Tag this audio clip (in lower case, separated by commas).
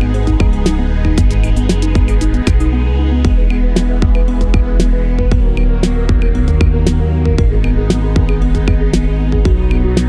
music